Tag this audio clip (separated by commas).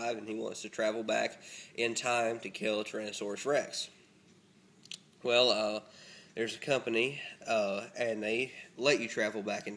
Speech